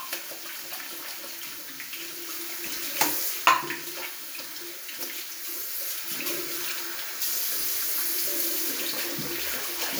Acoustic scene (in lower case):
restroom